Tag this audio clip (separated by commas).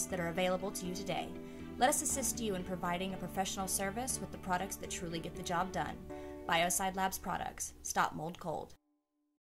Speech, Music